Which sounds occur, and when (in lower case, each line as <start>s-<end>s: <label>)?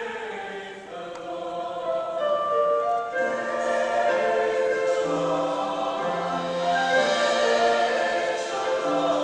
0.0s-2.2s: choir
0.0s-9.2s: music
1.1s-1.1s: tick
3.1s-9.2s: choir